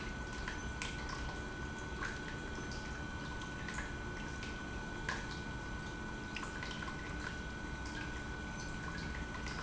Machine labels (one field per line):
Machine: pump